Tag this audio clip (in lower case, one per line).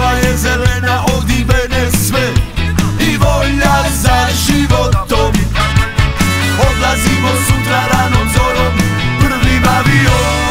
music
background music